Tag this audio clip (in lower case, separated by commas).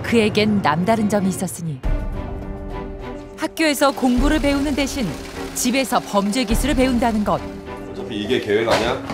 speech, music